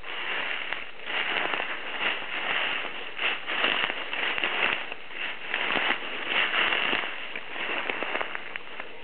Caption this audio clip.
Walking on rustling leaves